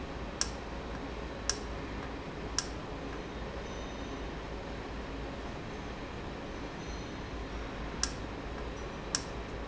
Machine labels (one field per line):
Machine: valve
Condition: normal